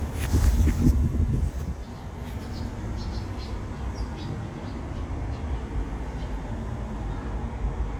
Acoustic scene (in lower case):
residential area